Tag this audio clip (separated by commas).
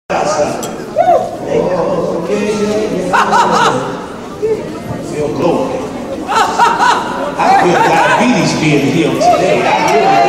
Speech, inside a large room or hall